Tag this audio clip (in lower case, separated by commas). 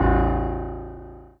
music, keyboard (musical), piano, musical instrument